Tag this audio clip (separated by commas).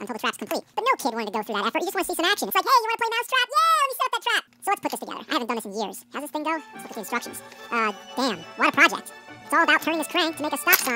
Speech, Music